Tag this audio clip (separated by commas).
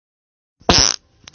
Fart